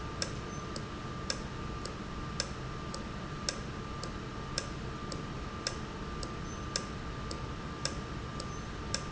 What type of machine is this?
valve